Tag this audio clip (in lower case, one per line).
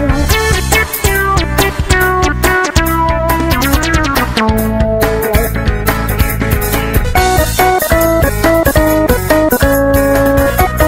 music